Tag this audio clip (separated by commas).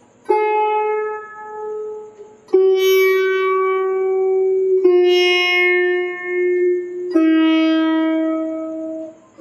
playing sitar